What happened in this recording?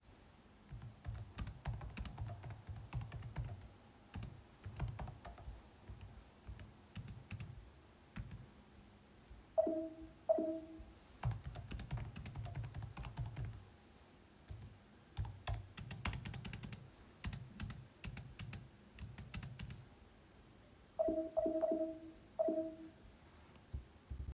I worked on the computer, typed, a few notifications appeared and produced notification sound